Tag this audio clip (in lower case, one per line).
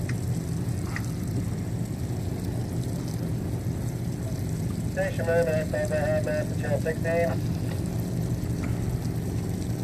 wind
fire